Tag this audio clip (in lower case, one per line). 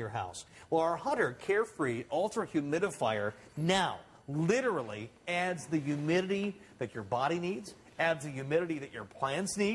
speech